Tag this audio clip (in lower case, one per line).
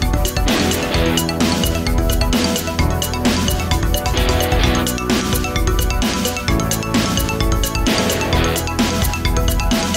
music